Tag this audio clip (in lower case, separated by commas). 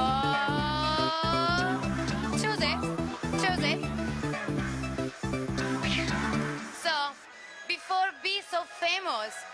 speech, music